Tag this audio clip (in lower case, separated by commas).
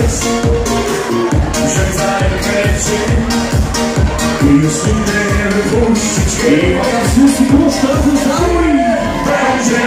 music